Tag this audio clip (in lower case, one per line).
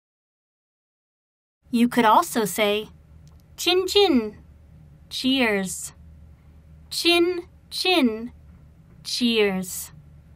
speech